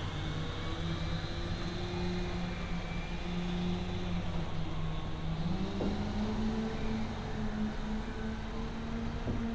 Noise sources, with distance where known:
large-sounding engine

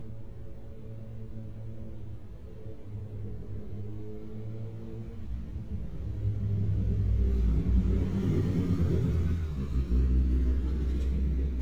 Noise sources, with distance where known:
engine of unclear size

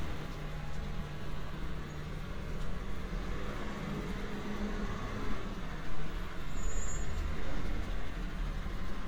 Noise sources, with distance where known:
large-sounding engine, near

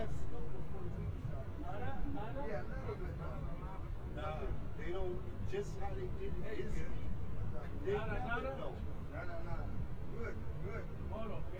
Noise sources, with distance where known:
person or small group talking, near

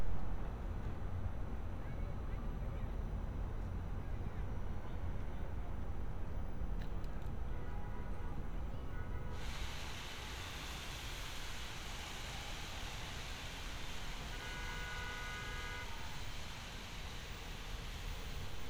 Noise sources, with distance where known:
car horn, far

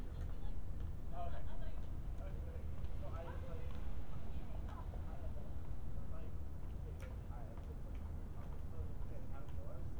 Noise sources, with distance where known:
person or small group talking

